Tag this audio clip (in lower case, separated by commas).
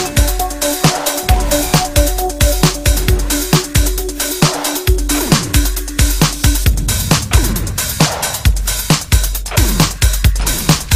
drum and bass, music